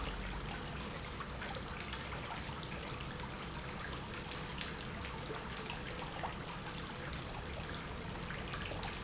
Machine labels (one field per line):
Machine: pump